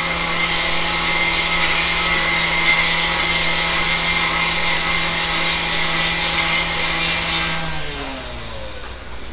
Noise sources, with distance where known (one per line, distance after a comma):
large rotating saw, near